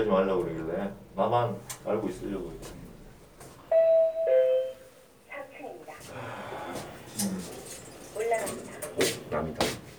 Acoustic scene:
elevator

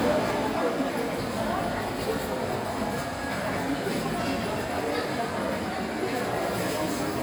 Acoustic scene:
crowded indoor space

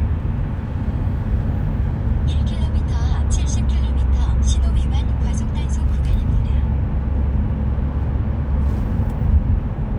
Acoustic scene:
car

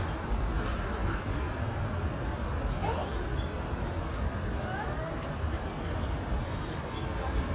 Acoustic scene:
park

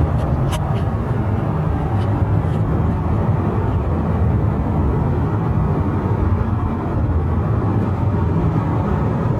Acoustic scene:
car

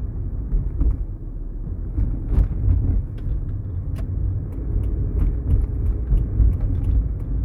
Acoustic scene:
car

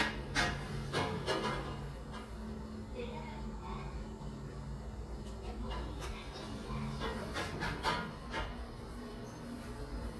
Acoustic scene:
elevator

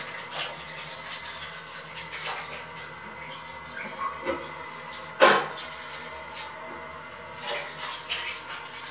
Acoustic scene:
restroom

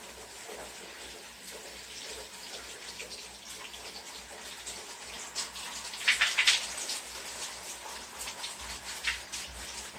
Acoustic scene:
restroom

